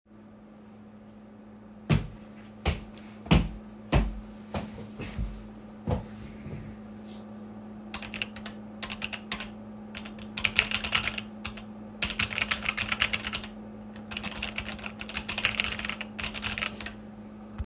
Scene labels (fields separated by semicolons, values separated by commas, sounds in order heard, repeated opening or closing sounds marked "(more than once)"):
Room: bedroom; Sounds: footsteps, keyboard typing